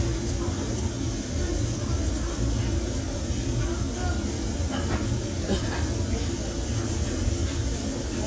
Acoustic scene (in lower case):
restaurant